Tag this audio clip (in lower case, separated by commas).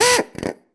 power tool, tools, drill